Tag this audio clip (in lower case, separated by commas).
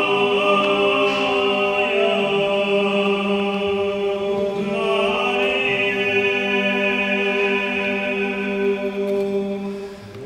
music